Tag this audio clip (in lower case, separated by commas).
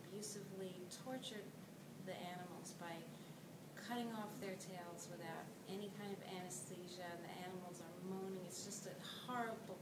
speech